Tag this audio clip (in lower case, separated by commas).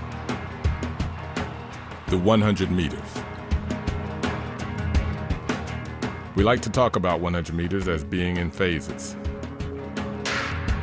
speech, music